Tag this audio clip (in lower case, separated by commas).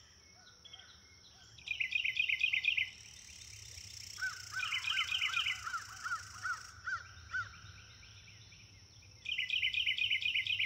animal, outside, rural or natural